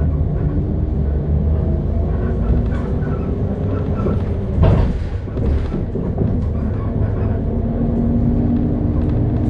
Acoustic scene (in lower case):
bus